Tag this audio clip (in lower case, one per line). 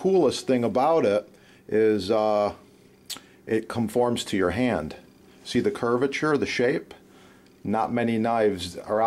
speech